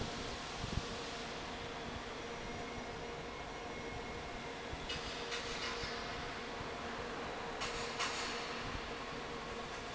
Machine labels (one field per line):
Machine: fan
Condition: normal